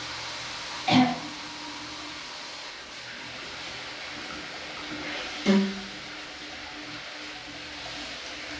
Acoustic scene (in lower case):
restroom